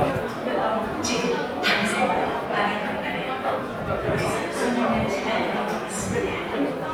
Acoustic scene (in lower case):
subway station